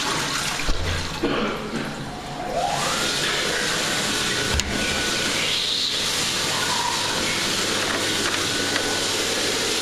Water gurgling and a machine revving up